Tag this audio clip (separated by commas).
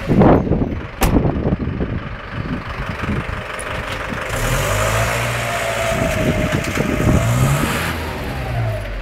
Car, Vehicle